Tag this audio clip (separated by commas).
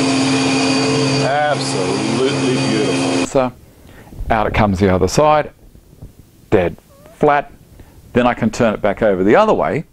planing timber